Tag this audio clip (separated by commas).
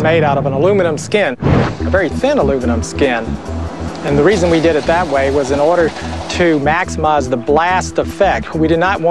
Music, Speech